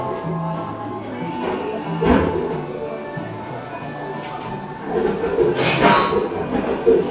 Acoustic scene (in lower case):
cafe